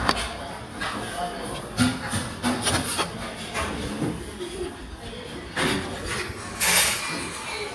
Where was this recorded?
in a restaurant